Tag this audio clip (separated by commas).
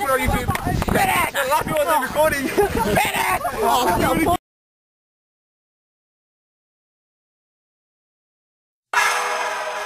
Speech, outside, rural or natural, Music